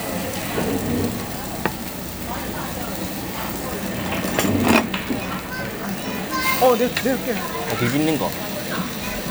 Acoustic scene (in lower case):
restaurant